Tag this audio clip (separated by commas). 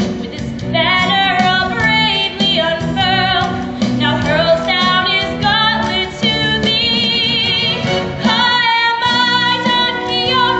Female singing, Music